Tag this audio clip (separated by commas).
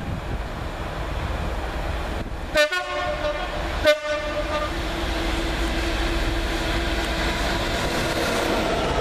Train, train wagon, Rail transport, Train horn